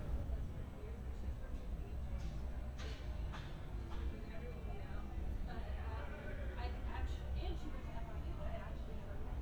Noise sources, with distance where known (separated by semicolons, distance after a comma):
non-machinery impact, far; person or small group talking